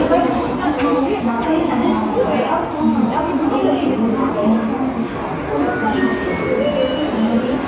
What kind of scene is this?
subway station